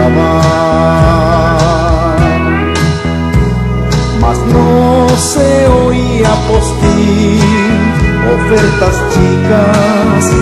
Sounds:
fiddle, music, musical instrument

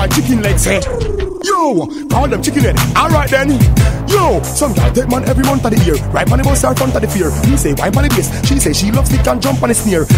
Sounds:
music

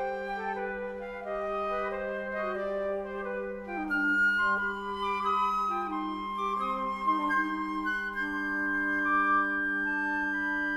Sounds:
wind instrument, music, classical music, flute, playing flute, musical instrument, inside a large room or hall

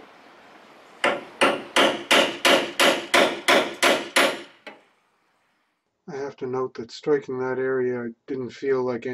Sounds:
hammer

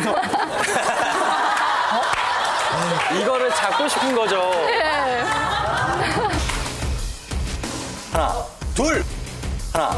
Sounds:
speech, music

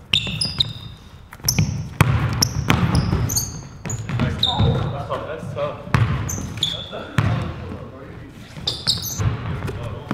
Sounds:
basketball bounce

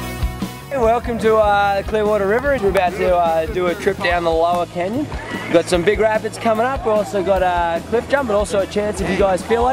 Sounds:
music, speech

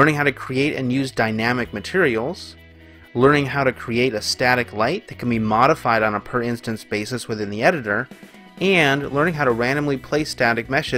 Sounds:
music, speech

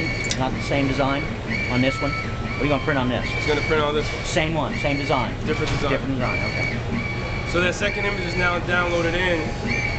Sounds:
speech, printer

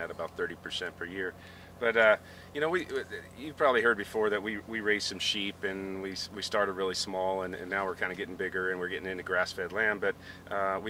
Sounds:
speech

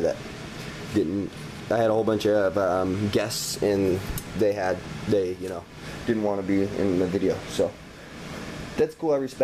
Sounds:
liquid, boiling, speech

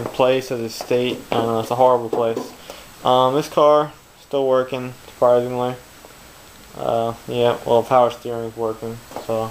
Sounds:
inside a large room or hall, speech

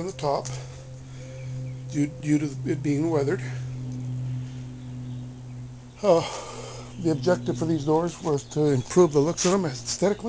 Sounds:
speech, music

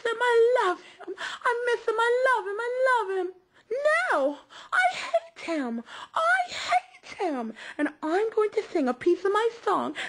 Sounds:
speech

